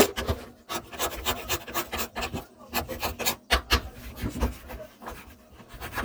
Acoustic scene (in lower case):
kitchen